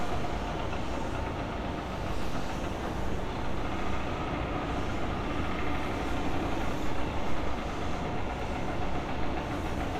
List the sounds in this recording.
unidentified impact machinery